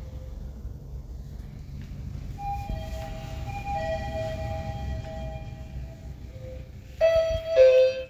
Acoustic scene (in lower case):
elevator